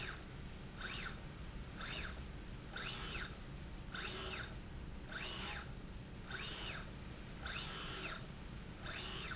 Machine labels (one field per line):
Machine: slide rail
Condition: normal